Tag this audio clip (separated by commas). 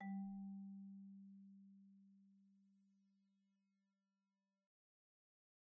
Musical instrument, Mallet percussion, Music, Percussion, Marimba, Wood